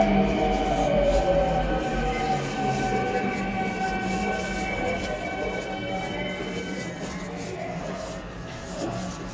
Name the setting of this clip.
subway station